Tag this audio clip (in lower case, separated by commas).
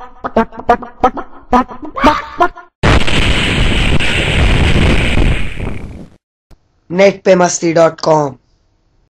speech